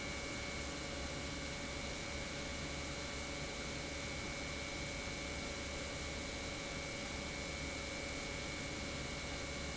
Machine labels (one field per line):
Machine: pump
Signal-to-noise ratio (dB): 0 dB